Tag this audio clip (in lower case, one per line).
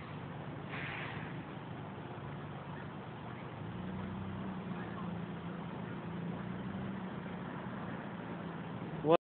bus
speech
vehicle